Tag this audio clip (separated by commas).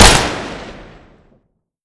Explosion, gunfire